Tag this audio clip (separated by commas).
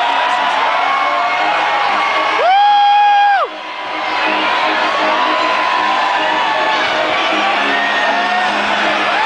Music